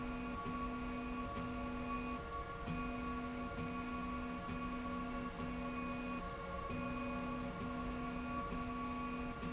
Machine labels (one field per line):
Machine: slide rail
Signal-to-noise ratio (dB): 0 dB